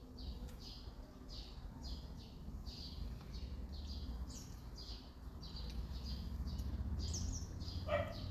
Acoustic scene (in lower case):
park